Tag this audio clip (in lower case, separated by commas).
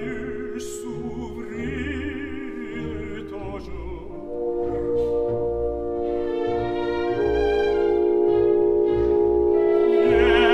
inside a large room or hall, classical music, orchestra, music, opera